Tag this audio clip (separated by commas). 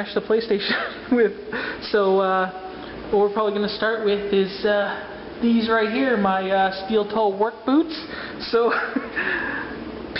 Speech